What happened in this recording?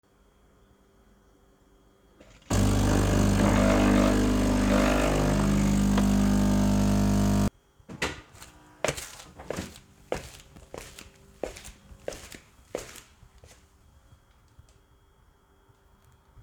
I started the coffee machine and walked around the kitchen while it was running.